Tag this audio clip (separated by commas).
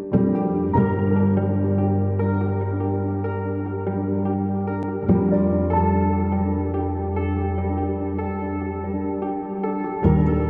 Music